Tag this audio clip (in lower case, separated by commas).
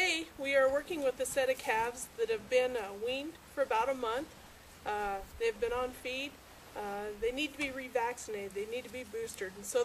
speech